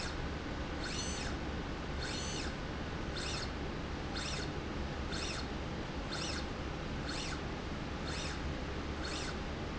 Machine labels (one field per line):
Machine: slide rail